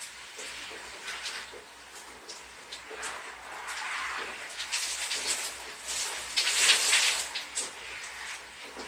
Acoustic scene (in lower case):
restroom